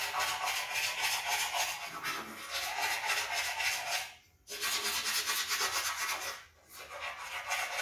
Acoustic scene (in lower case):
restroom